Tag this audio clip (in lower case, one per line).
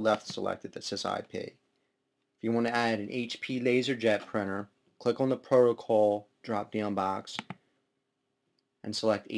speech